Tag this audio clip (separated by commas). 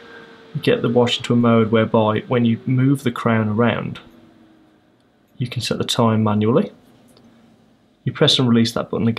Speech